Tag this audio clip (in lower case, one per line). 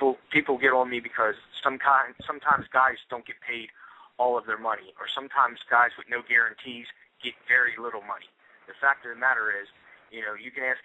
speech